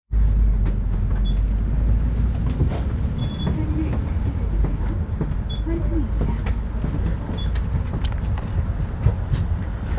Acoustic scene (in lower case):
bus